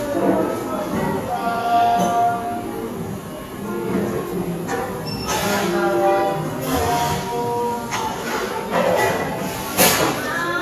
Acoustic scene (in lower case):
cafe